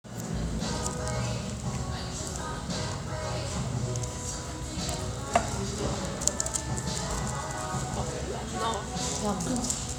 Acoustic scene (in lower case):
restaurant